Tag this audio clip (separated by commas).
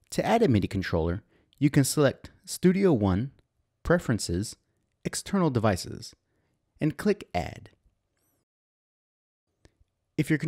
Speech